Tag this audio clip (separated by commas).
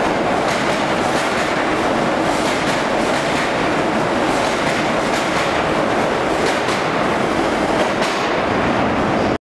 Vehicle, Rail transport, Train